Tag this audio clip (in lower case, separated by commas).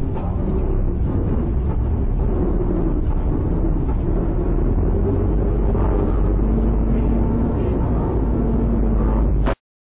car, motor vehicle (road), vehicle